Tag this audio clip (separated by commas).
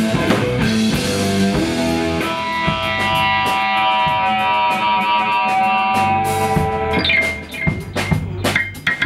Guitar, Music, Musical instrument, Drum, Blues